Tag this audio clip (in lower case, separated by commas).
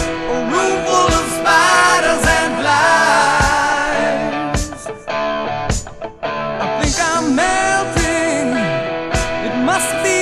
music